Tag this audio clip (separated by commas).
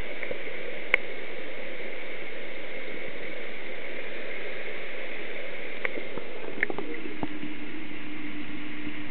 Static